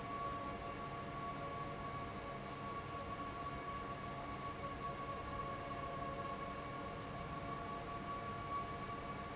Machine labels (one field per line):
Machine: fan